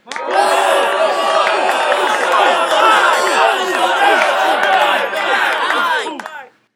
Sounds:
Human group actions, Cheering, Crowd

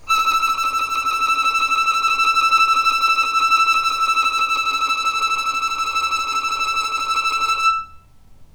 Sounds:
Music, Bowed string instrument, Musical instrument

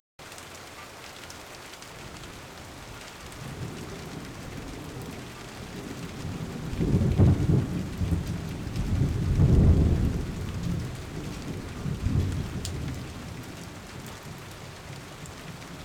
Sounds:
Thunderstorm, Thunder, Rain, Water

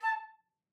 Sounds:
Musical instrument, Music, woodwind instrument

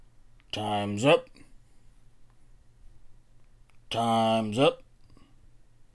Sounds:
Male speech, Human voice, Speech

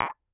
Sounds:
Tap

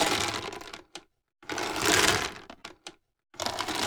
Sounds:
Crushing

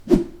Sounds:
Whoosh

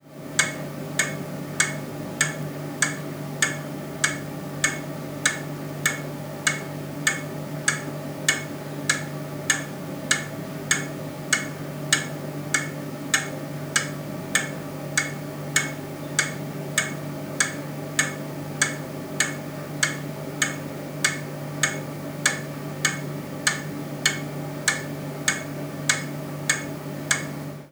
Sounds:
Clock, Mechanisms

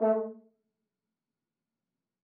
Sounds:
Musical instrument, Music, Brass instrument

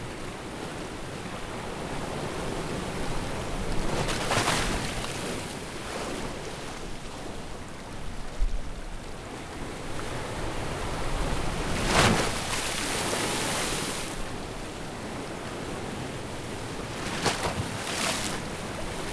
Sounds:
Water, Ocean, Waves

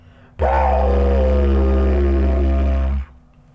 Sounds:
Music, Musical instrument

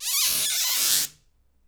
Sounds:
Squeak

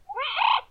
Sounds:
Bird, Wild animals, Animal

